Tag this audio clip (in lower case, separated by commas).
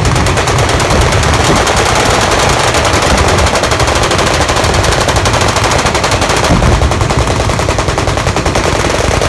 gunfire, machine gun